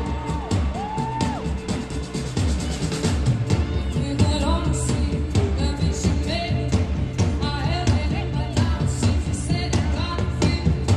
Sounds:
music

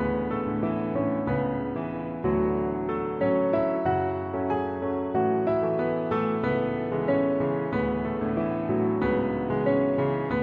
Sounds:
music

